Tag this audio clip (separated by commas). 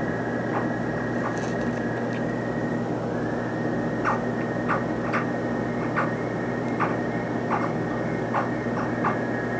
Frog